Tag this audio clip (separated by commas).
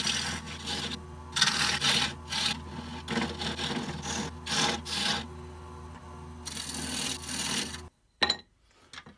lathe spinning